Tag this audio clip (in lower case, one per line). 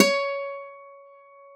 plucked string instrument
musical instrument
guitar
acoustic guitar
music